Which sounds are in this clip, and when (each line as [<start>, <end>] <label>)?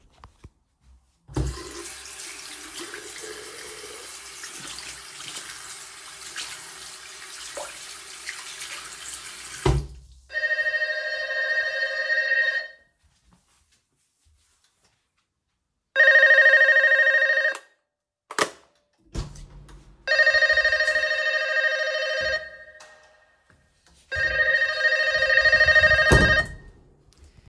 [1.36, 9.62] running water
[10.19, 12.84] bell ringing
[15.94, 17.68] bell ringing
[19.10, 19.97] door
[20.07, 22.54] bell ringing
[23.99, 26.58] bell ringing
[26.01, 26.53] door